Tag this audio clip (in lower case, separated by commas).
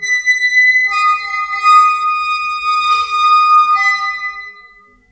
squeak